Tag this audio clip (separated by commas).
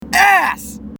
Human voice, Shout, Yell